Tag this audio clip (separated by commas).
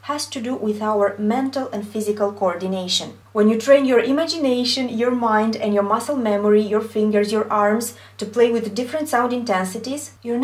Speech